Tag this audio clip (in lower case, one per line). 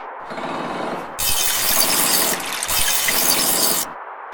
liquid